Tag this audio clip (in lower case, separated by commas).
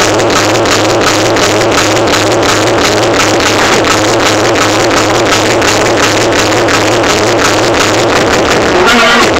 music, electronic music, techno